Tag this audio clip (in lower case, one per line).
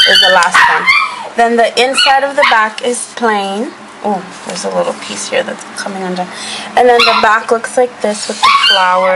speech
inside a small room
pets